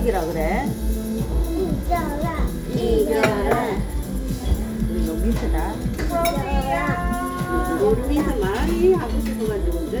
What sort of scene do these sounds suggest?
restaurant